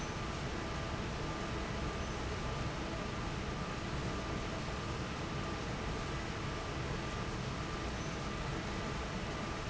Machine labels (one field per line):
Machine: fan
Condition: normal